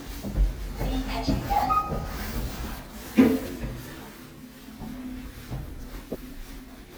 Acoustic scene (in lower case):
elevator